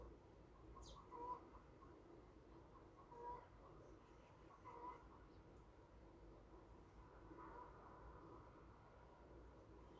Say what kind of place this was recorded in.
park